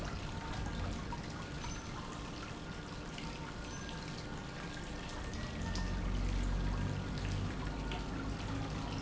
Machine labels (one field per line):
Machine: pump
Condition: normal